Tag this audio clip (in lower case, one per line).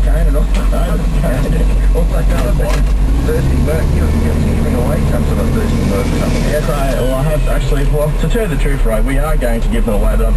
speech